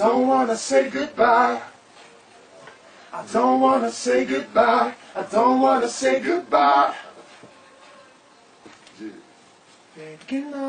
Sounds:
Male singing, Choir

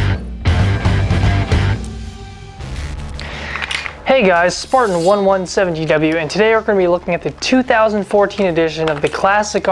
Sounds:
Music, Speech

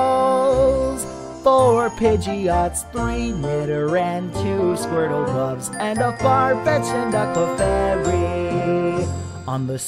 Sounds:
Music, Music for children

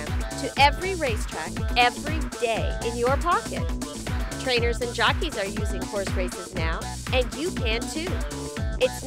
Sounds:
Music, Speech

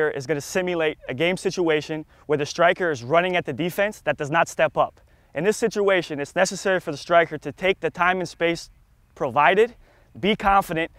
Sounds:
Speech

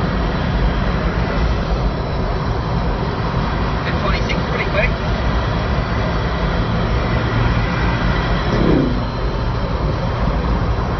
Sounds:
Speech

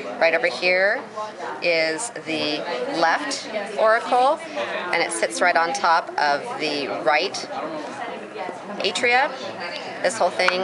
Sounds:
Speech

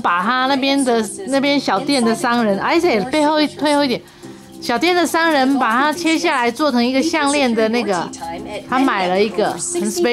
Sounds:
Speech, Music

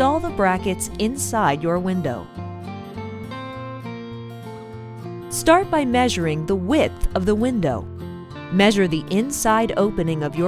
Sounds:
Speech, Music

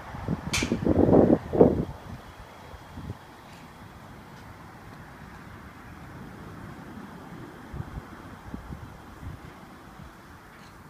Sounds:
golf driving

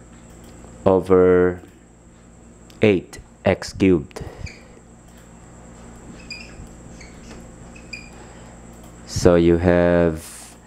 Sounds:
Speech

